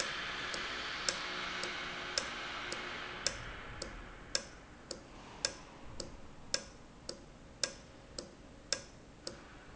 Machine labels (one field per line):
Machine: valve